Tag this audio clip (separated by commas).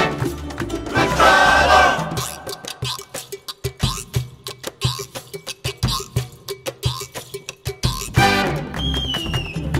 Music, Soundtrack music